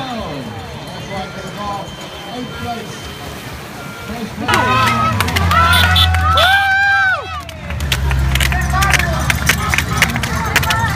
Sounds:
crowd
outside, urban or man-made
speech

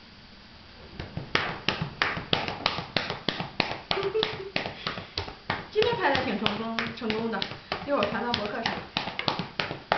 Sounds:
speech

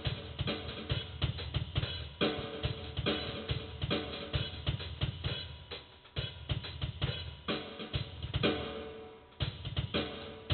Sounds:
drum
music
inside a small room
drum kit
musical instrument

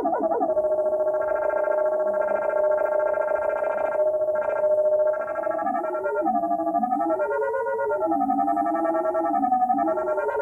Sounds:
synthesizer
inside a small room

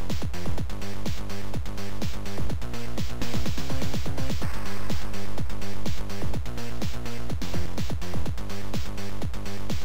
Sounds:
music
disco

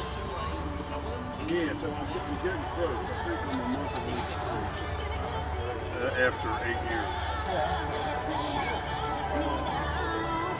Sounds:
music
speech

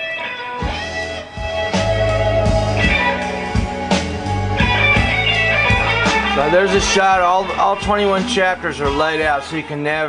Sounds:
electric guitar
plucked string instrument
speech
guitar
music
musical instrument

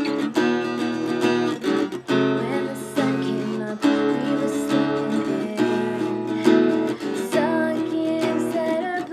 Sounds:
music

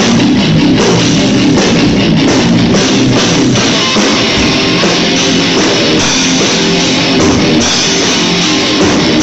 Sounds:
musical instrument
drum
bass drum
music
percussion
rock music
heavy metal
drum kit

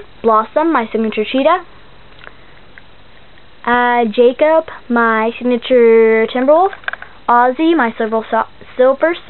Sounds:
speech
inside a small room

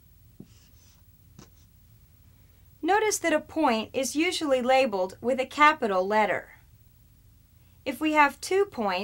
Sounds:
speech
writing
inside a small room

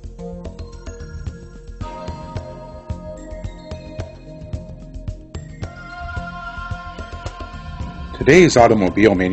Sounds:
speech
music

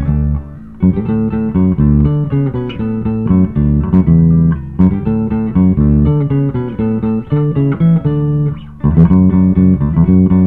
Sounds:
bass guitar
music

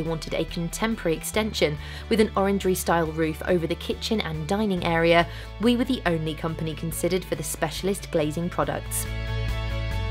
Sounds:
music
speech

